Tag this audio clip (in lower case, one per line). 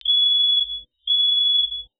alarm